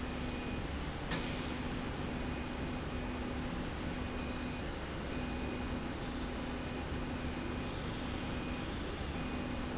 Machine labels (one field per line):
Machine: slide rail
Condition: normal